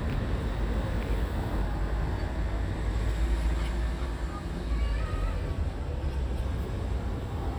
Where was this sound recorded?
in a residential area